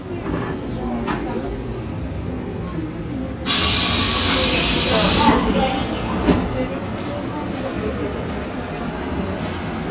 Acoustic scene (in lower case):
subway train